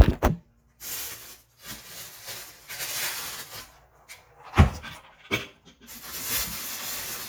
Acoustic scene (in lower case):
kitchen